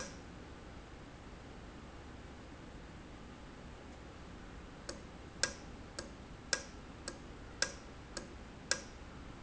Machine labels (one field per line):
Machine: valve